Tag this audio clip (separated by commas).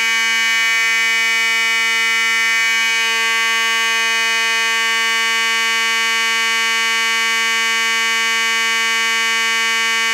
Fire alarm